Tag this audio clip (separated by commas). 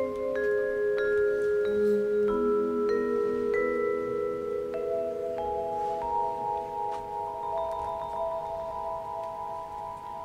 playing marimba, Music, Vibraphone, Marimba